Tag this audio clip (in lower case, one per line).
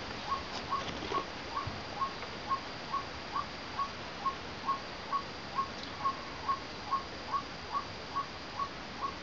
bird